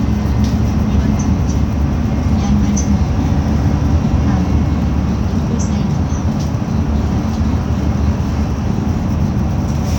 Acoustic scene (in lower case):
bus